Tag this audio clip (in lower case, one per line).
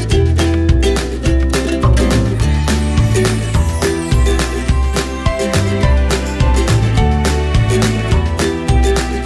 music